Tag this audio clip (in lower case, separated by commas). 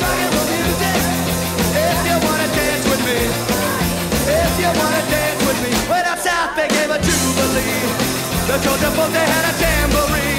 music, punk rock, speech